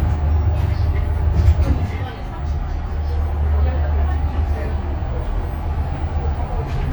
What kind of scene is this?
bus